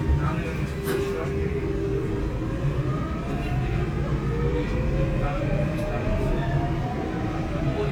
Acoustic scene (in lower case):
subway train